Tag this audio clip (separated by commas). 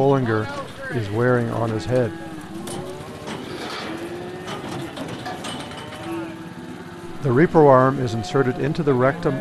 livestock, Cattle, Moo